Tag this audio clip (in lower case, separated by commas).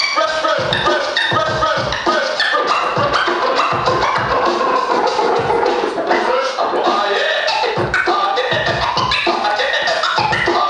electronic music, scratching (performance technique), music